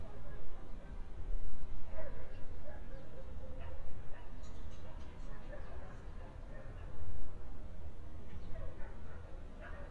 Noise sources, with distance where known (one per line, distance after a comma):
dog barking or whining, far